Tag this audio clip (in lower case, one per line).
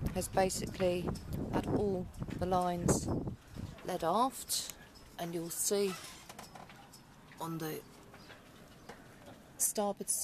speech